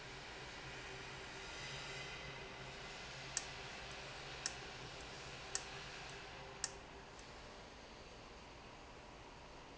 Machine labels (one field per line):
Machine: valve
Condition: abnormal